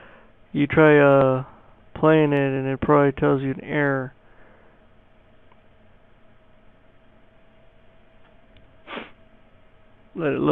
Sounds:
Speech

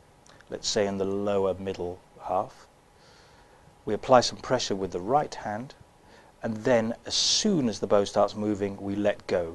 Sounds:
Speech, fiddle, Musical instrument, Music

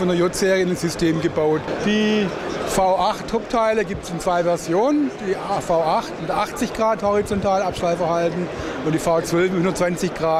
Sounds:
Speech

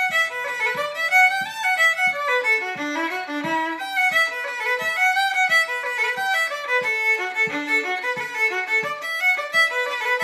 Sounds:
fiddle, Musical instrument, Music

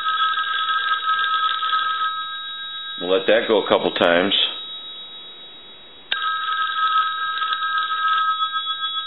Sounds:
Telephone bell ringing, inside a small room, Speech, Telephone

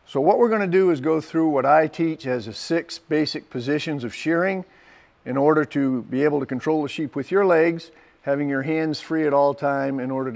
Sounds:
Speech

